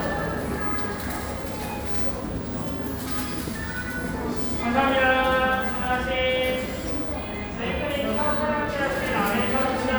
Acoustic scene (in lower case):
cafe